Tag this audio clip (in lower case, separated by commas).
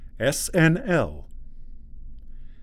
speech, man speaking, human voice